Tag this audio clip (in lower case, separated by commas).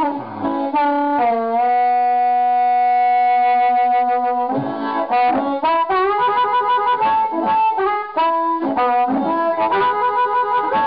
music, wind instrument